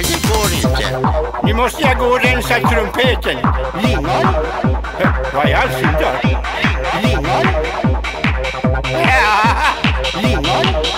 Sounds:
Techno, Music

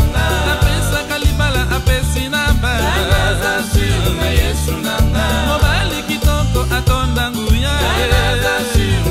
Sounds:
Folk music, Music

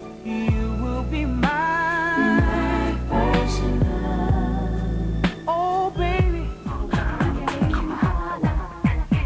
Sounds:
Dance music, Exciting music, Music

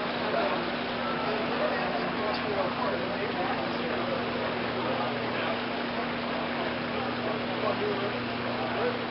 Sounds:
Speech

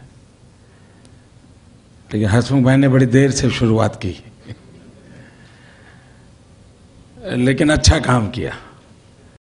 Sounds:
Speech, monologue, Male speech

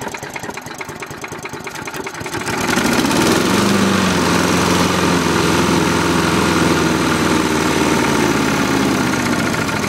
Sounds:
Lawn mower

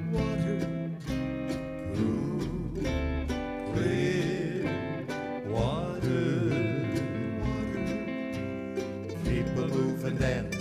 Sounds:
Music

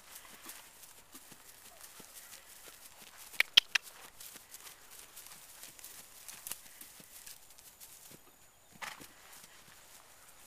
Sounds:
Clip-clop

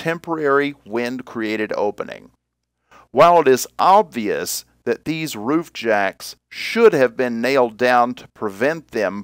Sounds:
Speech

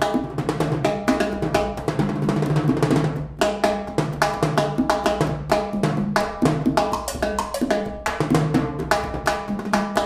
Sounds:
Percussion, Music

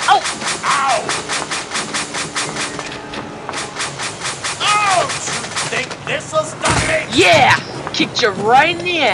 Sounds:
Speech, Music

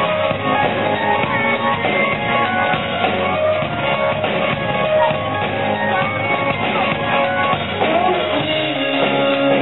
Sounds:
Speech, Music

